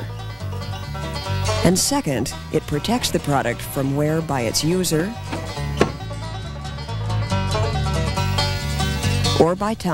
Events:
[0.00, 9.93] music
[1.59, 2.29] woman speaking
[2.50, 5.16] woman speaking
[5.22, 5.37] generic impact sounds
[5.71, 5.86] generic impact sounds
[9.33, 9.93] woman speaking

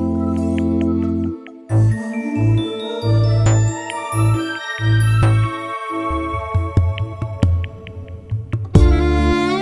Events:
[0.00, 9.61] music

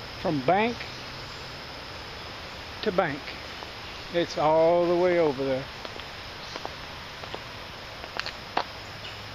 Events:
[0.00, 9.34] background noise
[0.23, 0.71] male speech
[0.46, 0.50] tick
[0.78, 0.83] tick
[2.79, 2.87] tick
[2.79, 3.15] male speech
[3.24, 3.30] tick
[3.59, 3.65] tick
[4.13, 5.64] male speech
[5.82, 6.06] walk
[6.52, 6.66] walk
[7.16, 7.34] walk
[7.98, 8.04] tick
[8.13, 8.28] walk
[8.55, 8.61] tick
[9.04, 9.18] tweet

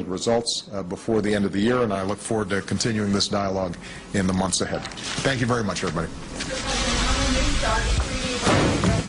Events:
[0.00, 3.78] man speaking
[0.00, 9.05] background noise
[3.84, 4.09] breathing
[4.15, 4.96] man speaking
[4.84, 5.94] paper rustling
[5.19, 6.11] man speaking
[6.37, 9.05] speech
[8.42, 9.05] generic impact sounds

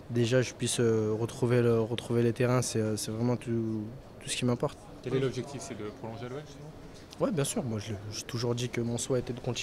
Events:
[0.00, 9.62] conversation
[0.00, 9.62] mechanisms
[0.07, 3.93] man speaking
[4.15, 4.83] man speaking
[5.02, 6.58] man speaking
[5.02, 6.73] speech noise
[7.07, 7.15] tick
[7.15, 9.62] man speaking

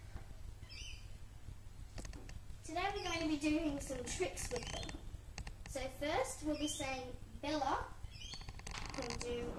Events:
[0.00, 0.14] generic impact sounds
[0.00, 9.55] mechanisms
[0.55, 1.07] mice
[1.89, 2.28] generic impact sounds
[2.60, 4.92] child speech
[2.94, 3.28] mice
[3.63, 4.94] creak
[4.54, 5.02] mice
[5.30, 5.70] creak
[5.62, 7.17] child speech
[6.32, 6.76] mice
[7.38, 7.85] child speech
[7.95, 8.60] mice
[8.23, 8.60] creak
[8.64, 9.55] generic impact sounds
[8.89, 9.55] child speech

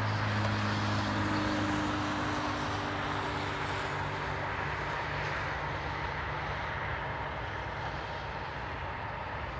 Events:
[0.00, 9.55] train
[0.00, 9.55] wind

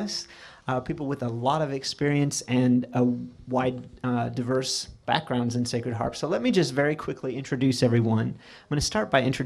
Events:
[0.00, 0.26] male speech
[0.00, 9.45] background noise
[0.26, 0.63] breathing
[0.63, 4.90] male speech
[5.04, 8.28] male speech
[8.32, 8.71] breathing
[8.67, 9.45] male speech

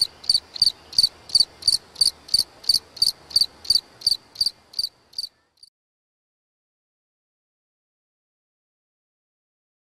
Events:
[0.00, 0.09] cricket
[0.00, 5.69] wind
[0.23, 0.39] cricket
[0.53, 0.72] cricket
[0.90, 1.11] cricket
[1.27, 1.45] cricket
[1.62, 1.76] cricket
[1.97, 2.11] cricket
[2.27, 2.46] cricket
[2.60, 2.78] cricket
[2.94, 3.13] cricket
[3.27, 3.49] cricket
[3.64, 3.79] cricket
[4.00, 4.15] cricket
[4.33, 4.51] cricket
[4.73, 4.90] cricket
[5.13, 5.28] cricket
[5.56, 5.69] cricket

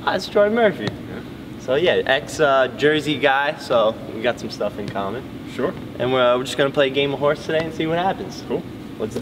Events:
[0.00, 0.86] man speaking
[0.00, 9.21] conversation
[0.00, 9.21] mechanisms
[0.81, 0.88] tap
[1.05, 1.26] man speaking
[1.56, 3.90] man speaking
[4.17, 5.19] man speaking
[4.83, 4.90] tap
[5.46, 5.79] man speaking
[6.00, 8.61] man speaking
[7.55, 7.62] tick

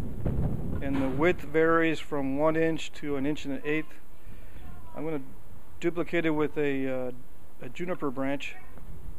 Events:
[0.00, 9.15] wind
[0.22, 0.54] wind noise (microphone)
[0.77, 1.08] generic impact sounds
[0.77, 4.00] female speech
[3.61, 3.95] female speech
[4.13, 4.68] breathing
[4.13, 5.14] female speech
[4.92, 5.23] female speech
[5.80, 7.18] female speech
[7.57, 8.79] female speech
[8.38, 8.81] female speech

